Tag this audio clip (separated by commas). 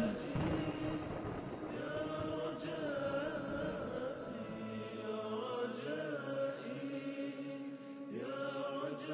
Chant, Music